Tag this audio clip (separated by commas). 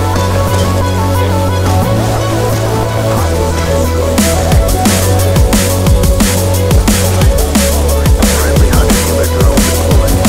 Music, Drum and bass